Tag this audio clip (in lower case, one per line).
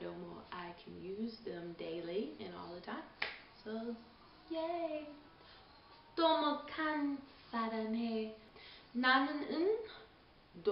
speech